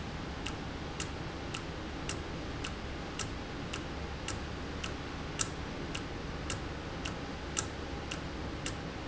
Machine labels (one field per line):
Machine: valve